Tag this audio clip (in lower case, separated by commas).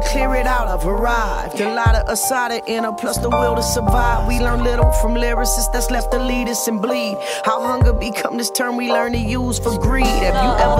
music